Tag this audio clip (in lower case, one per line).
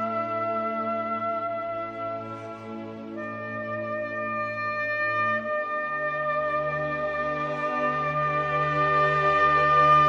playing oboe